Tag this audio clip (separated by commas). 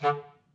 Music, Wind instrument, Musical instrument